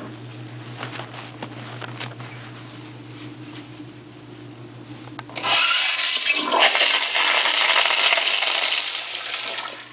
There is shuffling, and then a toilet flushes